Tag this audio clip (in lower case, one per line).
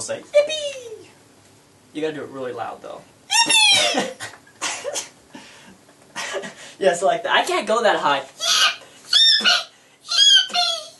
inside a small room
speech